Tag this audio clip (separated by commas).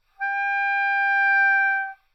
Music, Wind instrument, Musical instrument